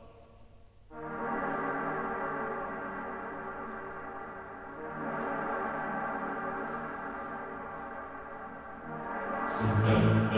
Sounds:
music

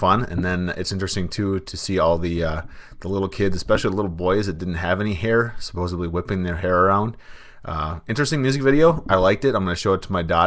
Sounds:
speech

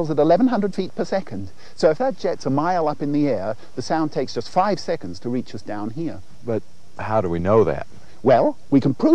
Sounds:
speech

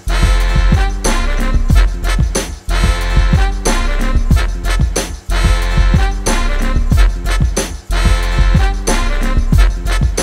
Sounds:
music

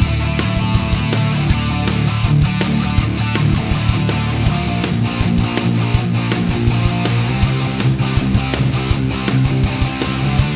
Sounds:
music

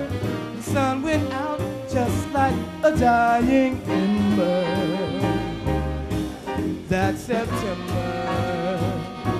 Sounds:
music

